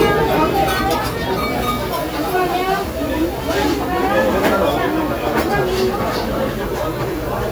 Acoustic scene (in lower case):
restaurant